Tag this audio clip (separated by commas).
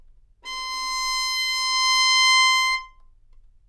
Music, Musical instrument, Bowed string instrument